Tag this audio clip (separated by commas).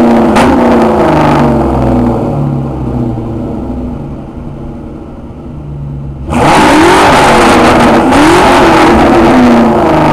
Clatter, Car, outside, urban or man-made, Vehicle, revving